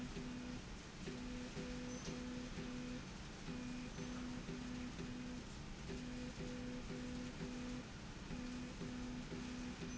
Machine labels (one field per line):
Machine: slide rail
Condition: normal